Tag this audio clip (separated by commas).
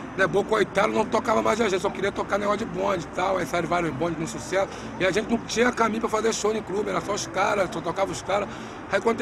Speech